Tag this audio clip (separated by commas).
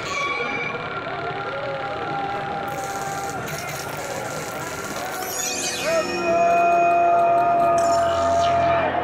Music